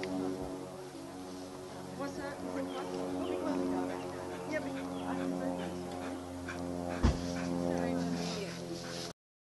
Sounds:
dog, domestic animals, whimper (dog), speech, animal

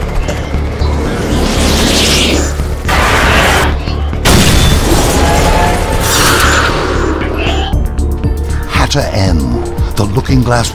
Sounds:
speech, music

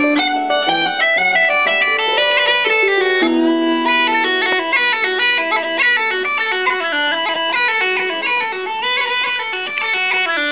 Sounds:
classical music, musical instrument, bagpipes, music, harp, bowed string instrument

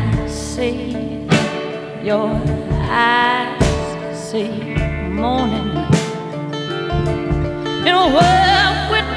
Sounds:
music

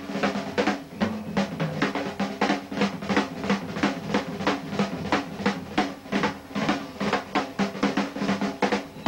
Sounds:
snare drum, percussion, drum, rimshot, bass drum, drum roll, drum kit

